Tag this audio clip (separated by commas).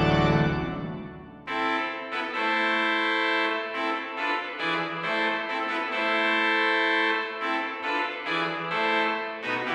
Music